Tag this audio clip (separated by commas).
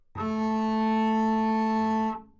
Bowed string instrument, Music, Musical instrument